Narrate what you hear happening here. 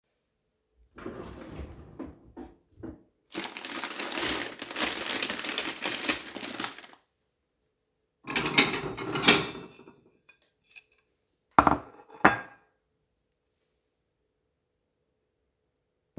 I open the snack drawer in the kitchen, take out some snacks and put down a plate for said snack